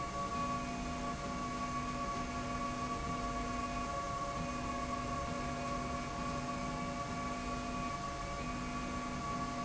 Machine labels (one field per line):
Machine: slide rail